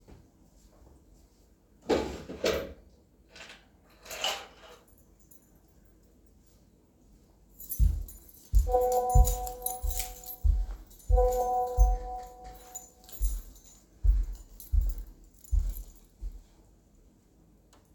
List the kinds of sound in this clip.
footsteps, wardrobe or drawer, keys, phone ringing